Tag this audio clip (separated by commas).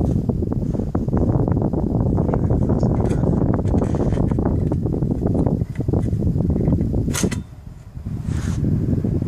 air conditioning noise